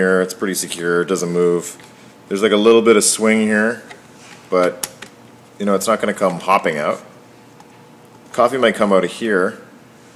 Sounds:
speech

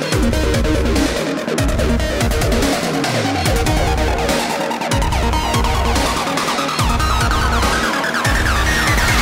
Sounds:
music

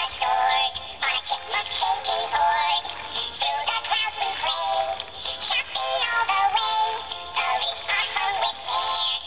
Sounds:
music, synthetic singing

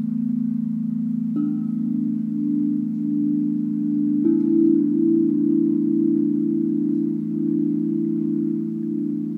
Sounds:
wind chime

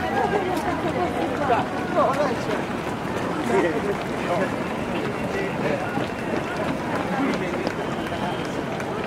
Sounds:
speech, run, speech babble

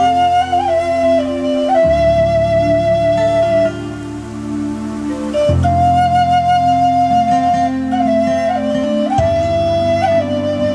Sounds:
wind instrument, flute

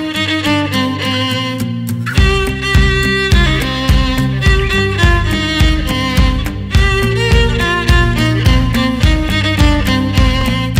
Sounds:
musical instrument, music, fiddle

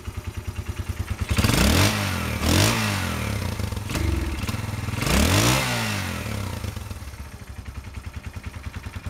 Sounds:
sound effect

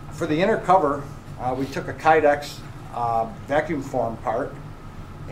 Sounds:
speech

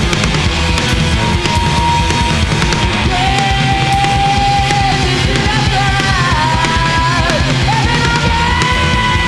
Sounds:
music, singing, punk rock, bass guitar

